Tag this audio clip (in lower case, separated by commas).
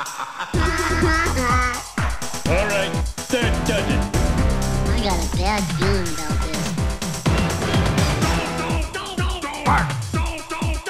disco, speech, music